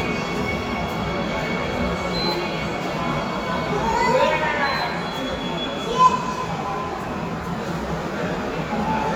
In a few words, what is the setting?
subway station